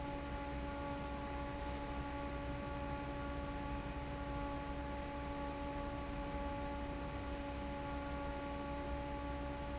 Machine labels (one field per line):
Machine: fan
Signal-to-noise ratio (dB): 0 dB